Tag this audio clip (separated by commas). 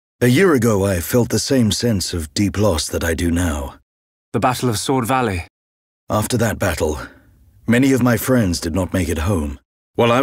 inside a small room, Speech